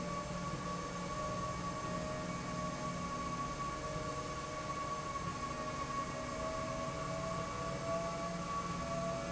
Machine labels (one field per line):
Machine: slide rail